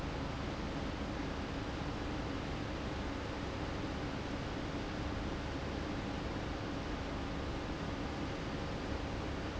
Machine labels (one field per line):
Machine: fan